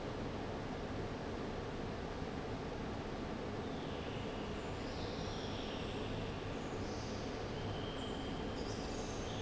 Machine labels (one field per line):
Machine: fan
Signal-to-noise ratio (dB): 0 dB